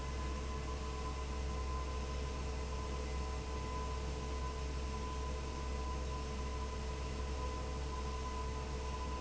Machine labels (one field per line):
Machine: fan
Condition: abnormal